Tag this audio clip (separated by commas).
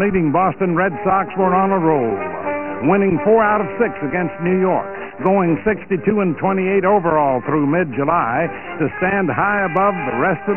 Speech, Music